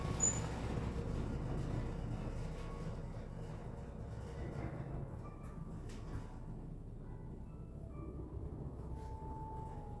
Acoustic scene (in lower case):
elevator